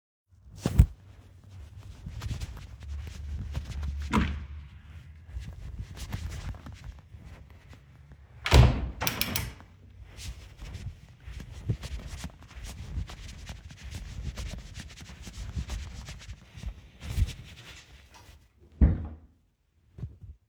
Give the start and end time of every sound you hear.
[0.94, 4.03] footsteps
[4.04, 4.59] door
[4.77, 8.29] footsteps
[8.22, 9.75] door
[9.97, 18.37] footsteps
[18.69, 19.26] door

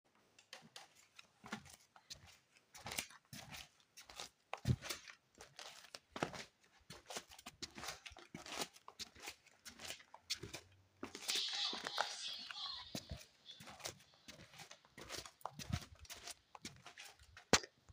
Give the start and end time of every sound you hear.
[0.41, 17.68] footsteps

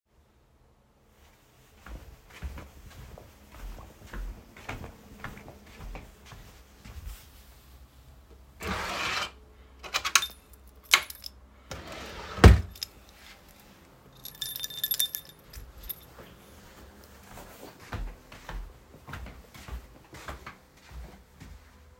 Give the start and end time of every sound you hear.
[1.78, 7.86] footsteps
[8.53, 9.41] wardrobe or drawer
[9.73, 10.55] keys
[10.84, 11.37] keys
[11.69, 12.96] wardrobe or drawer
[14.20, 16.10] keys
[17.25, 21.23] footsteps

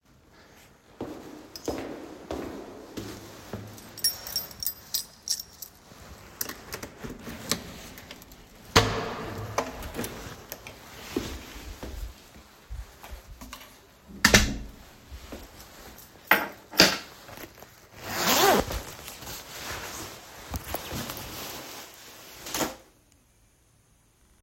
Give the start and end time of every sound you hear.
[1.00, 3.72] footsteps
[4.00, 5.72] keys
[6.39, 10.47] door
[10.89, 12.18] footsteps
[14.23, 14.75] door
[15.30, 15.47] footsteps
[16.30, 17.23] keys

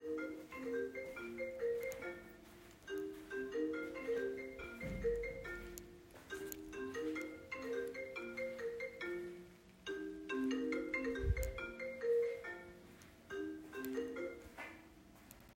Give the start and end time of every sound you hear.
[0.02, 15.55] phone ringing

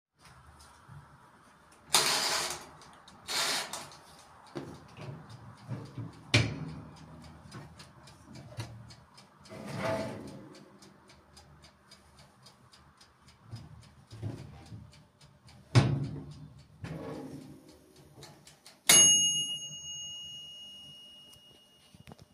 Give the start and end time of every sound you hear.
[1.86, 22.19] microwave

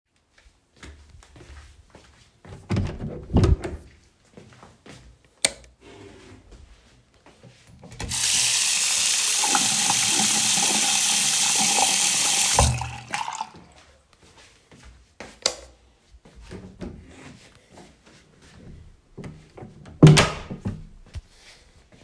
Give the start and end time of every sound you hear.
[0.19, 2.62] footsteps
[2.64, 3.80] door
[3.79, 5.33] footsteps
[5.27, 5.81] light switch
[6.47, 7.93] footsteps
[7.97, 13.58] running water
[13.62, 15.16] footsteps
[15.12, 15.86] light switch
[15.78, 19.96] footsteps
[19.76, 21.34] door
[21.36, 22.04] footsteps

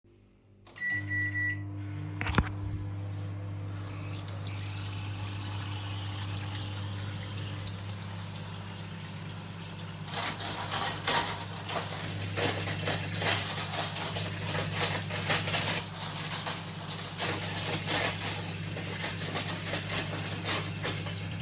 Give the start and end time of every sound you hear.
[0.72, 21.42] microwave
[4.05, 21.42] running water
[10.06, 21.42] cutlery and dishes

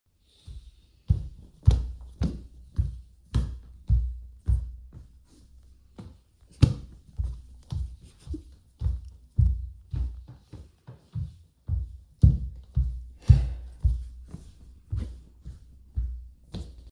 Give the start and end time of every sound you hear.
[1.09, 5.07] footsteps
[6.61, 16.92] footsteps

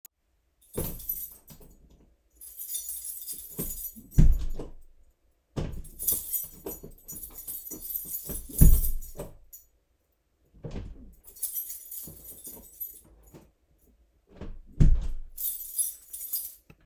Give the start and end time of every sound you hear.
[0.56, 2.04] keys
[0.61, 1.73] door
[2.32, 4.06] keys
[3.94, 4.81] door
[5.55, 9.61] door
[5.82, 9.33] keys
[9.50, 9.76] keys
[10.61, 13.08] door
[11.11, 13.52] keys
[13.32, 13.42] door
[14.36, 15.28] door
[15.33, 16.86] keys

